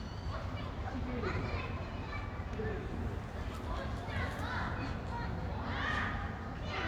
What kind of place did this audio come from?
residential area